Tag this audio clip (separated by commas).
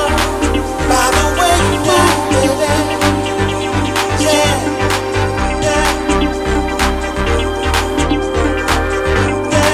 Funk